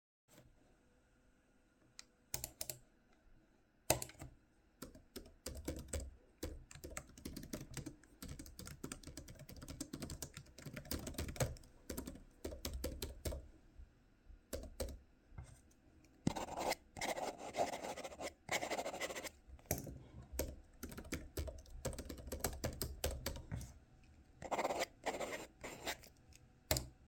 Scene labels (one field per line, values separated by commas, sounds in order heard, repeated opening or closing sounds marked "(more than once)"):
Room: office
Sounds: keyboard typing